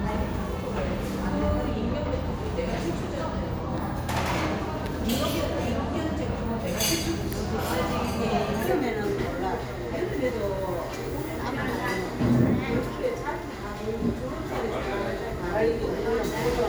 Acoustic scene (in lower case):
cafe